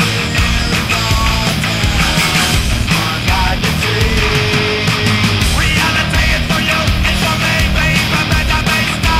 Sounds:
music

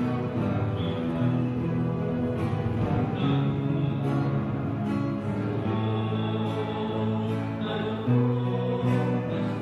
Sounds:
music

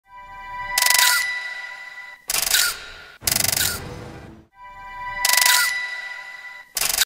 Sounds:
sound effect

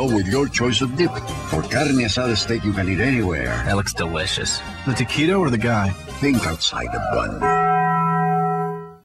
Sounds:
music, speech

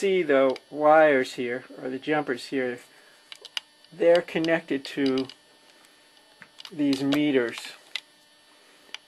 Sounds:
speech, tap

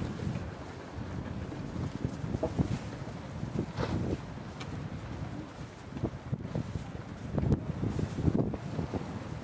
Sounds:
wind, wind noise, wind noise (microphone)

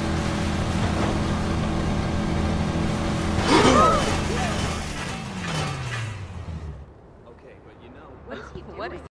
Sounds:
speech, vehicle, motorboat

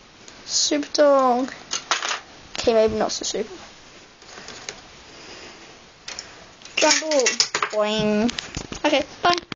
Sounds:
speech

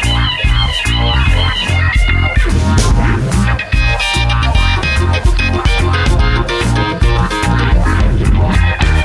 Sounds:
blues, rhythm and blues, music

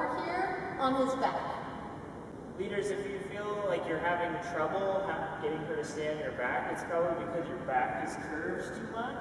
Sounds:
speech

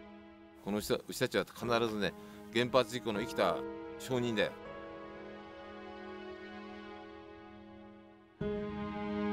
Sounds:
speech, music

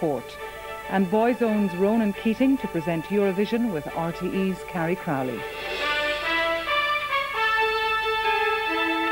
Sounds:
speech, music

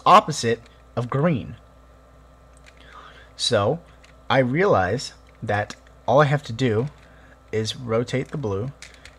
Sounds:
speech, monologue

